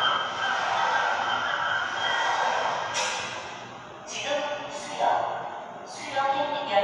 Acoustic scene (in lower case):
subway station